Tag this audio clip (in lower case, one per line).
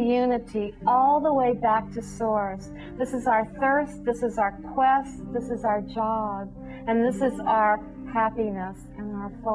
speech
female speech
music